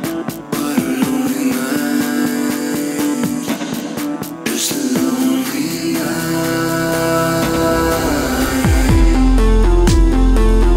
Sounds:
music

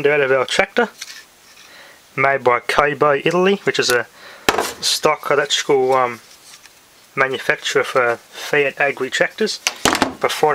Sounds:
speech

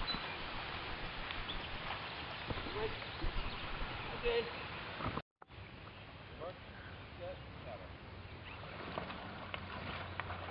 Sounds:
water vehicle, speech, canoe, rowboat

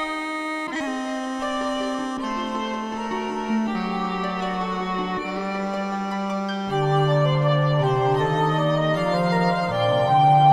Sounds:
bowed string instrument, music

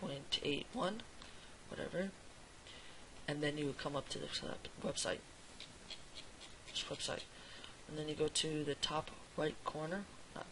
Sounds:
speech

